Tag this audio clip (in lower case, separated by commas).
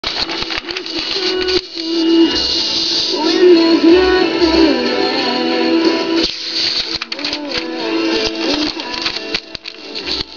typing on typewriter, typewriter